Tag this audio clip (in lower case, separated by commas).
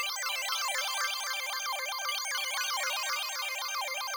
music, keyboard (musical), musical instrument